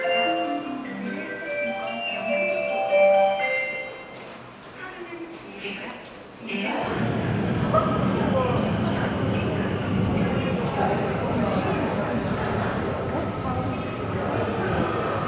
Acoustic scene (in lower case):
subway station